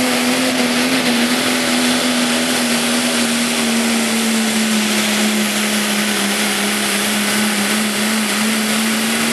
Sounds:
vehicle

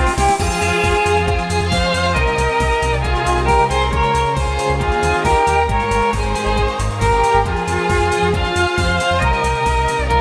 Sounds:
music, violin, musical instrument

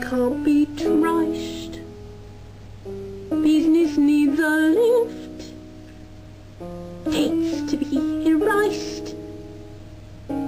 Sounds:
female singing, music

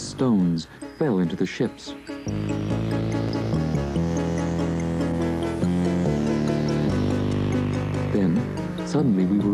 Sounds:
music, speech

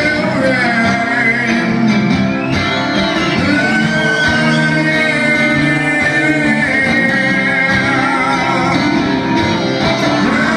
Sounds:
music, singing

